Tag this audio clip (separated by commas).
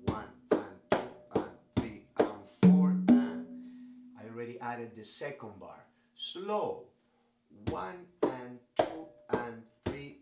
playing congas